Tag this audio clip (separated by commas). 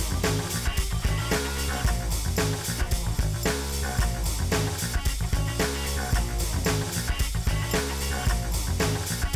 Music